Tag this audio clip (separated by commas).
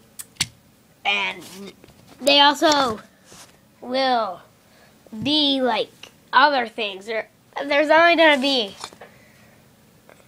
Speech